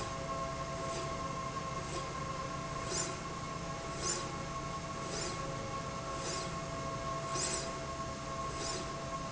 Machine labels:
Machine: slide rail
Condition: normal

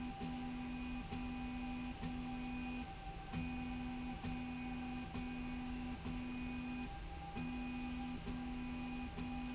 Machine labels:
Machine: slide rail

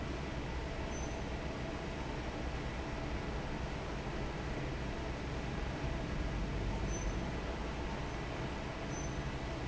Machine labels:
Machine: fan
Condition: normal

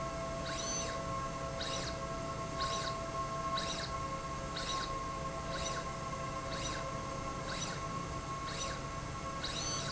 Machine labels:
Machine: slide rail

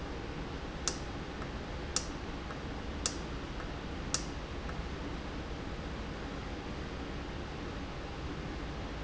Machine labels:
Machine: valve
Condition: normal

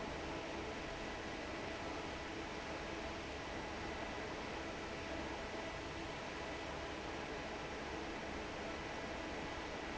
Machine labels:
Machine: fan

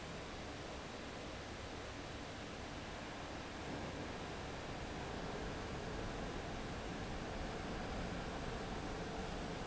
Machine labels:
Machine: fan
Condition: abnormal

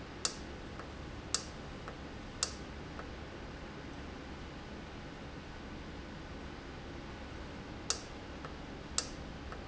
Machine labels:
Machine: valve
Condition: normal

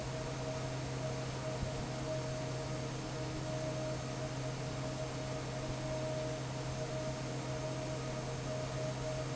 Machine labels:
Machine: fan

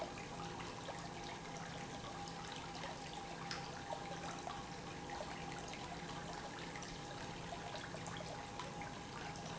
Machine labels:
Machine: pump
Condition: normal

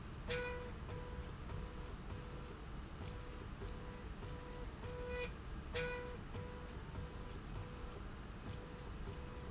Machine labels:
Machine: slide rail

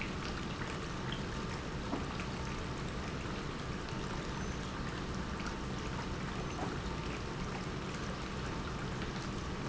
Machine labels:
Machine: pump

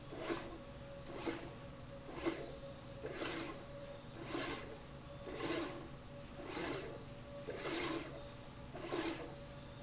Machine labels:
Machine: slide rail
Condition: abnormal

